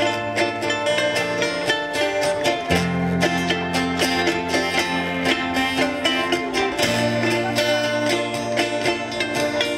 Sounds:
speech, bluegrass, music, ukulele

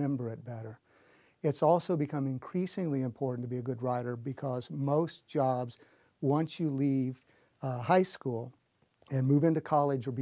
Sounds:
speech

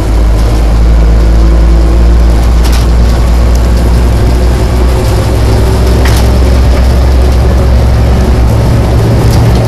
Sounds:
vehicle, truck

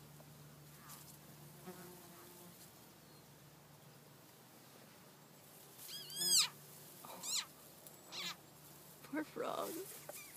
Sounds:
animal, speech

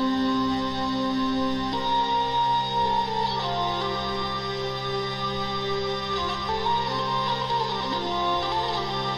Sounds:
music

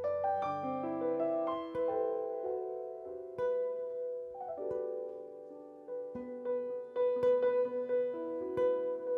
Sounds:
plucked string instrument, guitar, music, musical instrument

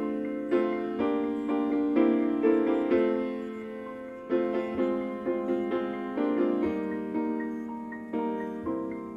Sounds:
music, tender music

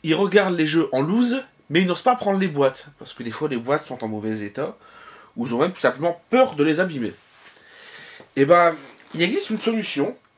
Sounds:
speech

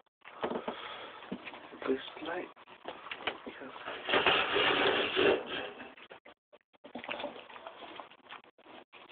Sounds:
speech

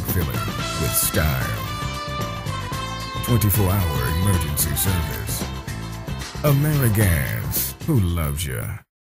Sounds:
music, speech

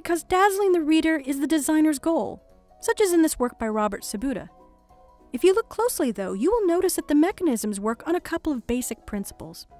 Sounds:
music, speech

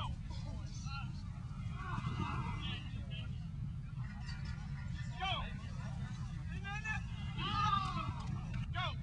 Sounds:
outside, urban or man-made, speech

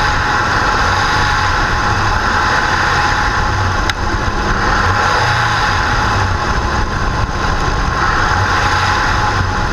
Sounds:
idling, engine, vehicle, medium engine (mid frequency), revving

